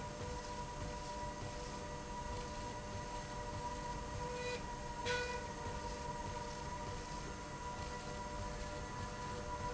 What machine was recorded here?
slide rail